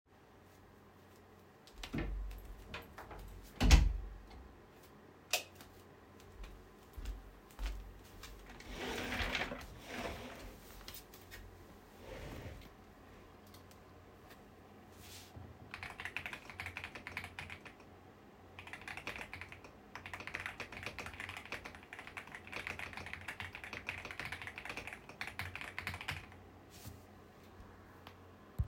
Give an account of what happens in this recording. I enter my room and close the door, turn the light on via the light switch. I then sit down on my chair and start typing on my keyboard.